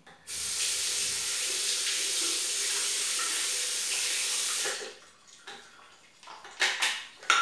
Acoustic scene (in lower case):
restroom